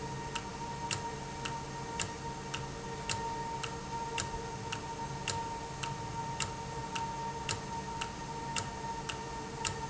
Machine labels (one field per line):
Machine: valve